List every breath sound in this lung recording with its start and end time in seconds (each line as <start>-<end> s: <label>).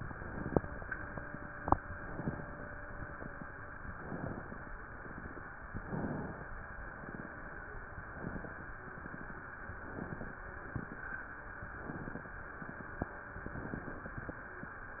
0.01-0.94 s: inhalation
1.78-2.71 s: inhalation
3.86-4.79 s: inhalation
5.67-6.61 s: inhalation
7.93-8.86 s: inhalation
9.57-10.50 s: inhalation
11.56-12.49 s: inhalation
13.35-14.28 s: inhalation